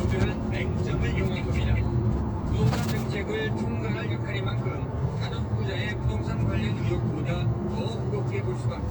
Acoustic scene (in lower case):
car